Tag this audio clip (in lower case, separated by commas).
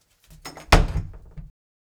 domestic sounds, wood, door, slam